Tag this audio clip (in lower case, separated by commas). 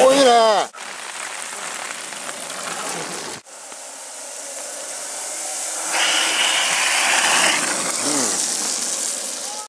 speech, rain on surface